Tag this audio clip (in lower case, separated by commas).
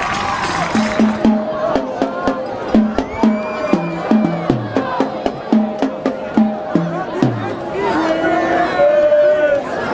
music, inside a public space, speech